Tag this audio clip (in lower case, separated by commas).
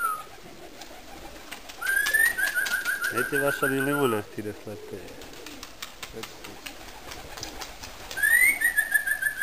speech, bird, pigeon